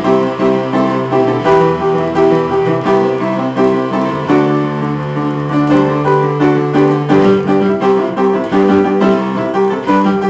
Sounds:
Guitar, Plucked string instrument, Musical instrument, Music

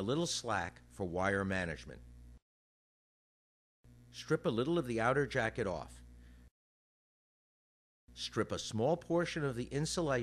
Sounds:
Speech

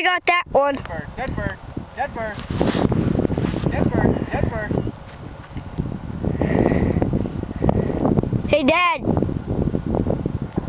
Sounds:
Speech

